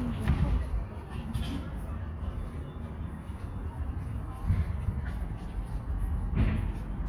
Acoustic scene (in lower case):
park